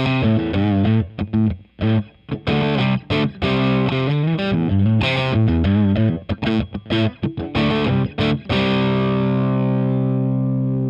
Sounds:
musical instrument, bass guitar, music, guitar, strum, plucked string instrument

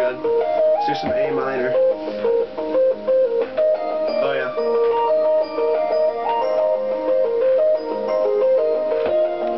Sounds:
speech, music

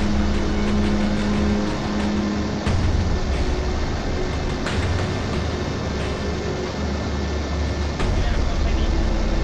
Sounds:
speech, music, vehicle

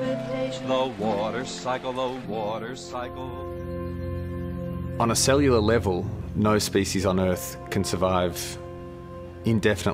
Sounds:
speech, music

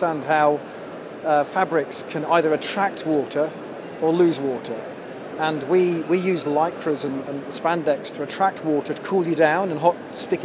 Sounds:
speech

